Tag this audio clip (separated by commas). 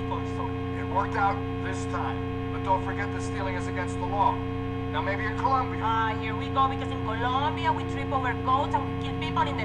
Speech